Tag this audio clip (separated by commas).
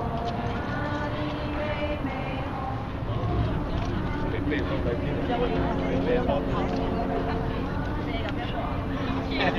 Speech